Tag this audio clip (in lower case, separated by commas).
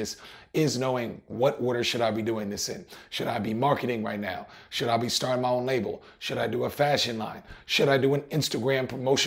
speech